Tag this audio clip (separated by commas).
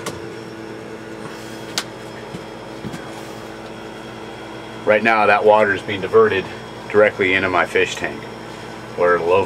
inside a small room, Speech